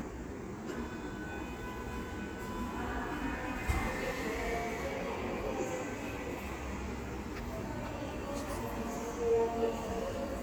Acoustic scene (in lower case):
subway station